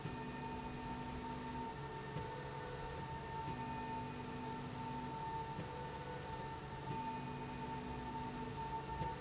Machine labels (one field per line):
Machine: slide rail